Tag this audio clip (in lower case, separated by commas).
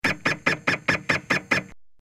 printer, mechanisms